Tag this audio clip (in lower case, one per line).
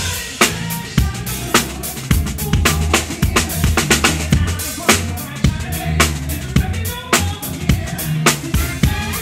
drum roll
snare drum
rimshot
percussion
drum
drum kit
bass drum